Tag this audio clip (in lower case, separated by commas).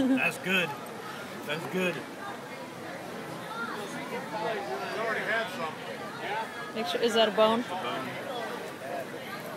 speech